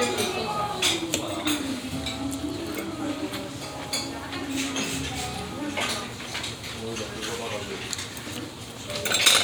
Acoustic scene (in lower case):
restaurant